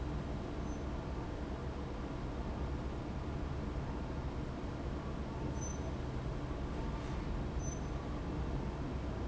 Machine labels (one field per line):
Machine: fan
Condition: abnormal